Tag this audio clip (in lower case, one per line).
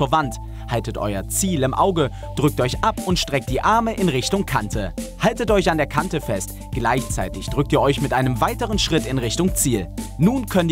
music
speech